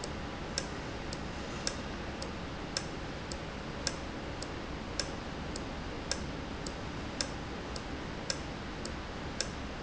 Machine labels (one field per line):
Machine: valve